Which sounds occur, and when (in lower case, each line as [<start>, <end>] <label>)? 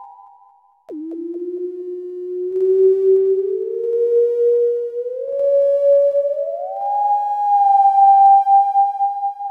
[0.00, 9.50] music